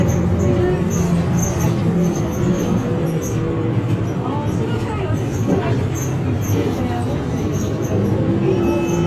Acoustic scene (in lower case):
bus